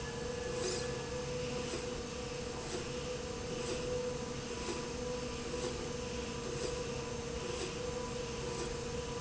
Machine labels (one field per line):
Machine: slide rail